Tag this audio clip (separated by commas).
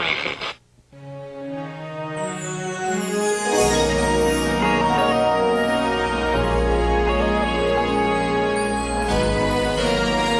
Music